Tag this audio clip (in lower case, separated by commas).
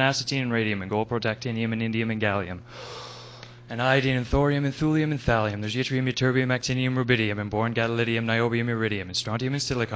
speech